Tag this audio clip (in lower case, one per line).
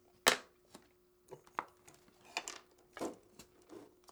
tools